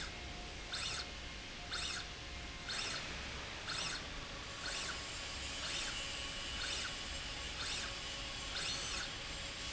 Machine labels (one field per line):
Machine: slide rail